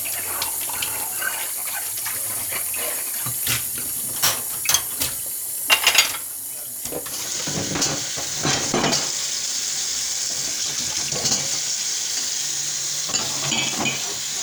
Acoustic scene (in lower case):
kitchen